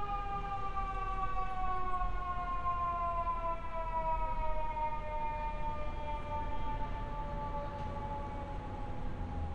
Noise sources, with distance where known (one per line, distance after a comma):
unidentified alert signal